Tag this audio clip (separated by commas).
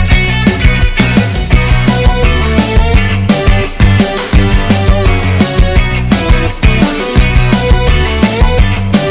Music